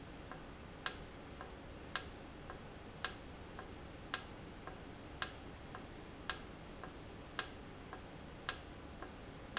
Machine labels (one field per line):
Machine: valve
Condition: normal